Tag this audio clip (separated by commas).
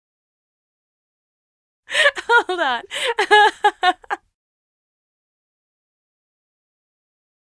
Human voice, chortle, Laughter